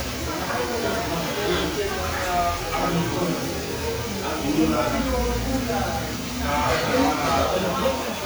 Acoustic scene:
restaurant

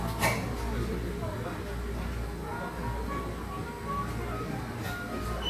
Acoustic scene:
cafe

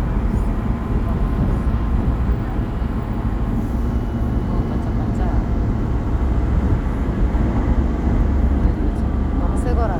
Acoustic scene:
subway train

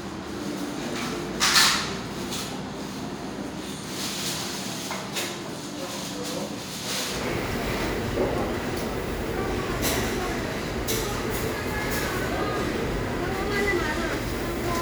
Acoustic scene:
restaurant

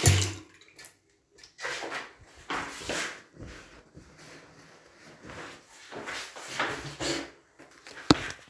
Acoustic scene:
restroom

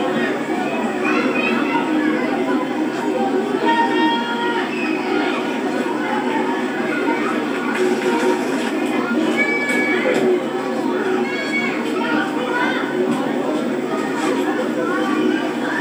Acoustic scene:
park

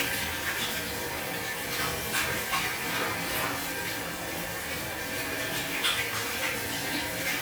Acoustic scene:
restroom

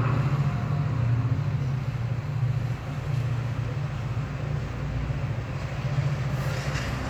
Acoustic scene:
residential area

